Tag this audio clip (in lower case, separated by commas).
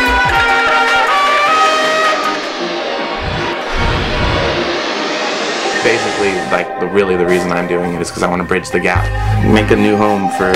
speech, music